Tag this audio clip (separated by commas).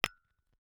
Glass, Tap